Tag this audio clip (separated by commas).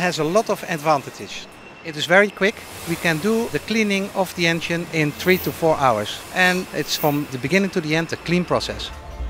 Speech